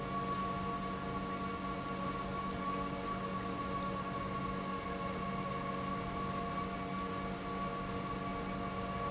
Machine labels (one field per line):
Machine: pump